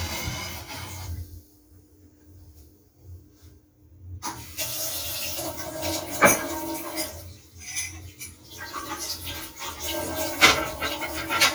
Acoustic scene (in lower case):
kitchen